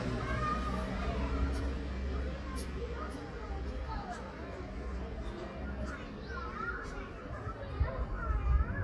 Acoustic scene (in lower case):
residential area